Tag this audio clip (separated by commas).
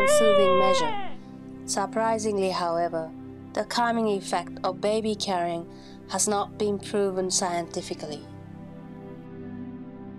Speech, Music